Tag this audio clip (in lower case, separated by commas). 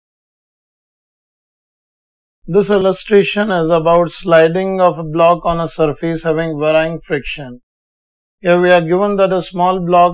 inside a small room, speech